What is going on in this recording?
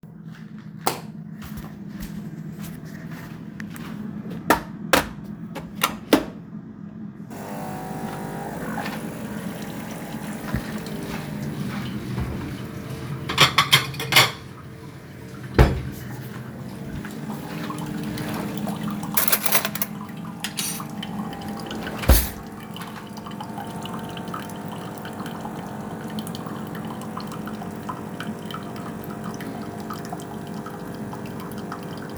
I went to the kitchen and turned on the light. Then turned on the coffee machine and opened a drawer to take plate and spoon.